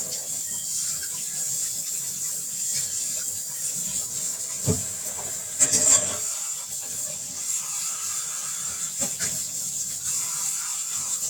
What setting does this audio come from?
kitchen